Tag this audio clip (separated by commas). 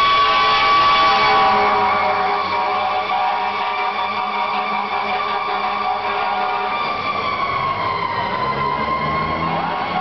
Car, Vehicle